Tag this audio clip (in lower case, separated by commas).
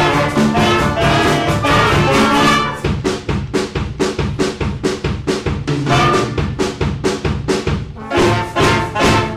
drum, hi-hat, music